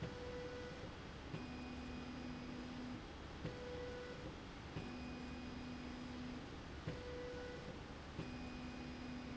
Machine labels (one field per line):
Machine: slide rail